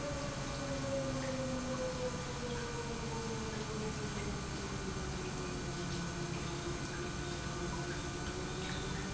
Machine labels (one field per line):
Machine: pump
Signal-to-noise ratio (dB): -6 dB